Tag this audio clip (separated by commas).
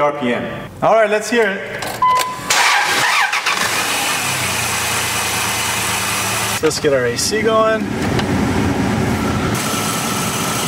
Speech